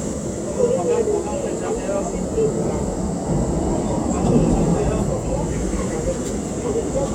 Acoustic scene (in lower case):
subway train